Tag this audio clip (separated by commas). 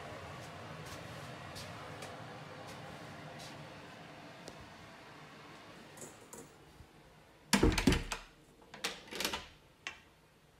bathroom ventilation fan running